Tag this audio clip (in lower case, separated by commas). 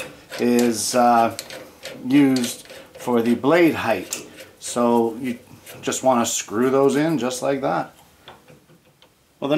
tools, speech